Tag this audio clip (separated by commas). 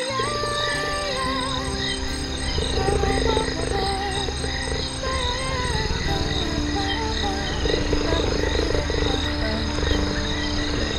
cheetah chirrup